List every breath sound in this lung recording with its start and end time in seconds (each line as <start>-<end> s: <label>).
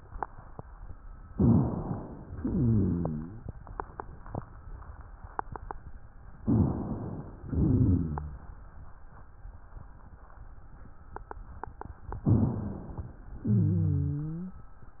1.31-2.35 s: inhalation
2.43-3.47 s: exhalation
2.43-3.47 s: wheeze
6.41-7.46 s: inhalation
7.50-8.54 s: exhalation
7.50-8.54 s: wheeze
12.26-13.30 s: inhalation
13.47-14.59 s: exhalation
13.47-14.59 s: wheeze